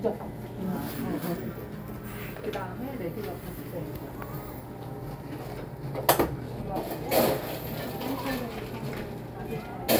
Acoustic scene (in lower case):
cafe